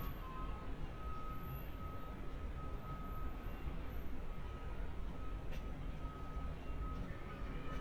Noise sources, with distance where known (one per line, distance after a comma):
unidentified alert signal
unidentified human voice, far